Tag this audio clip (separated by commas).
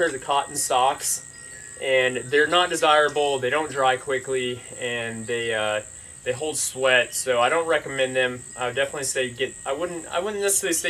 Speech